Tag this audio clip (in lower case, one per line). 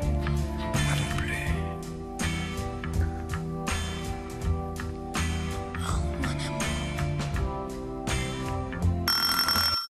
music
speech